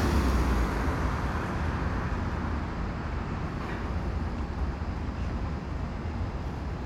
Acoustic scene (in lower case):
residential area